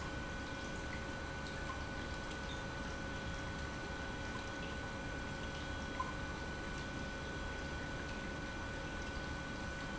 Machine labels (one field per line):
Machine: pump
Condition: normal